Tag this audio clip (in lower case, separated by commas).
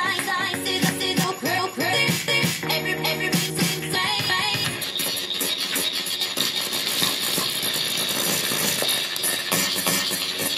scratching (performance technique), music